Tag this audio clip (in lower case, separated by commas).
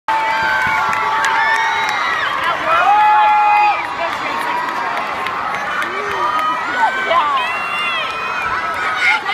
cheering